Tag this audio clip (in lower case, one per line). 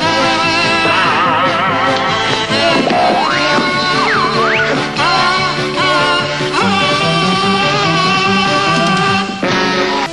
music
rhythm and blues